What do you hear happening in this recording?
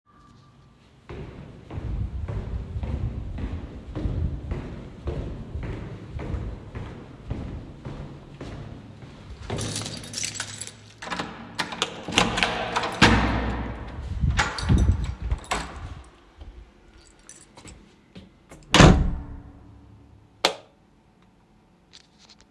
Walked up to the door, grabbed the keys from my pocket, opened the door, entered, closed the door behind me and turned on the light.